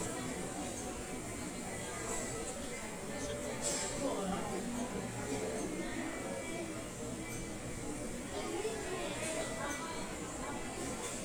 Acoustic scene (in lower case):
restaurant